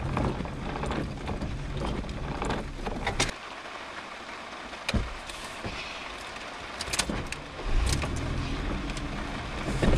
Rain falling followed by a car wiper blades clearing the windscreen